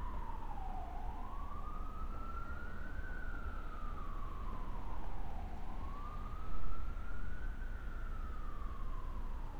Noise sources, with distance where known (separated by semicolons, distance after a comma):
siren, far